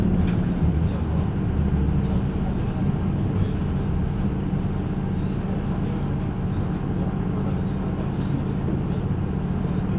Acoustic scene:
bus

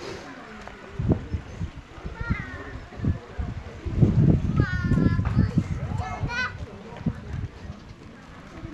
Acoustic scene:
park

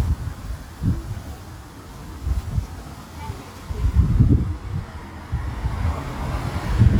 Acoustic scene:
residential area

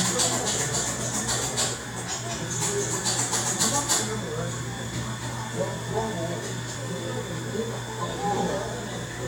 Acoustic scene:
cafe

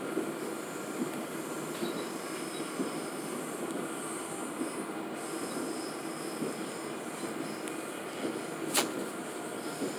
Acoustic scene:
subway train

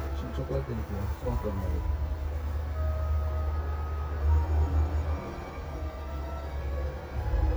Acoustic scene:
car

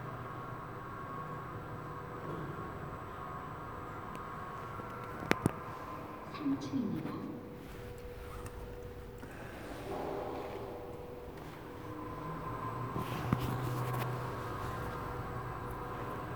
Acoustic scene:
elevator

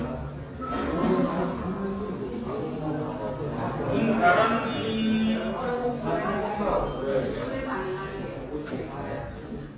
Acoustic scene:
crowded indoor space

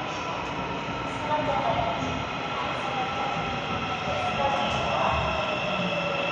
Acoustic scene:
subway station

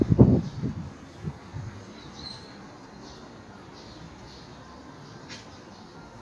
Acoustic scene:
park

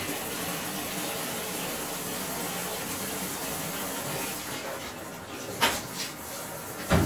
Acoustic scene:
restroom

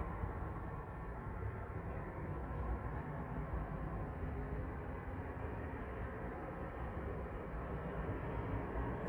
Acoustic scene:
street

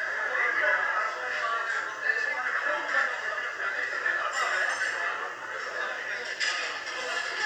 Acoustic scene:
crowded indoor space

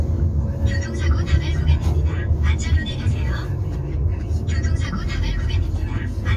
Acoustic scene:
car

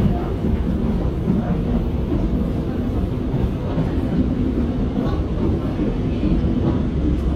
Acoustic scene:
subway train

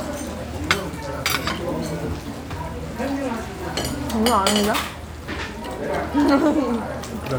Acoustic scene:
restaurant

